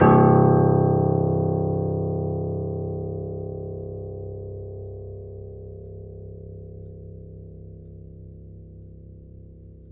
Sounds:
Piano, Musical instrument, Keyboard (musical), Music

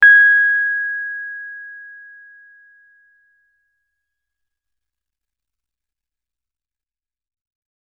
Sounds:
Music, Keyboard (musical), Musical instrument, Piano

